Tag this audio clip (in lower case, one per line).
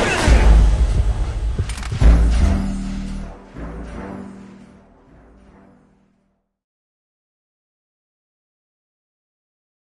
music